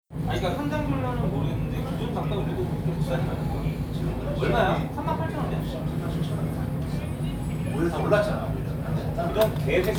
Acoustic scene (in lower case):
restaurant